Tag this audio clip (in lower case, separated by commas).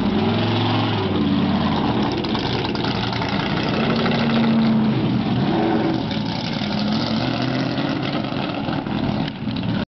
motor vehicle (road), vehicle, car